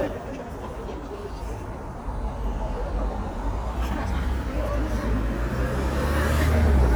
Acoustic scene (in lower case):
street